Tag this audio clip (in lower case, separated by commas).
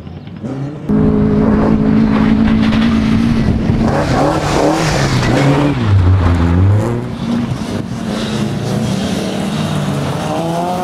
auto racing, car, vehicle, motor vehicle (road)